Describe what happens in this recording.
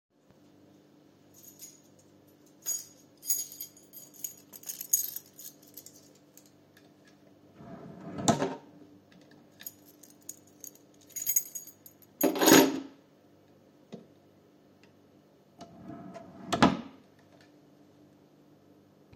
I brought the keys to drawer with intensions to put them there. I opened the drawer, put my keys there, then closed it.